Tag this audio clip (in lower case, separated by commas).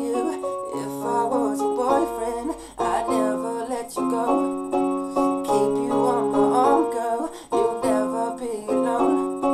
male singing, music